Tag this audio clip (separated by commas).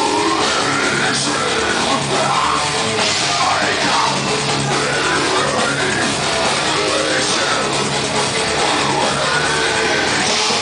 Rock music, Music, Heavy metal